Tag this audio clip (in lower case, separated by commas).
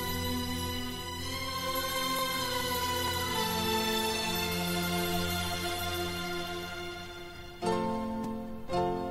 woodwind instrument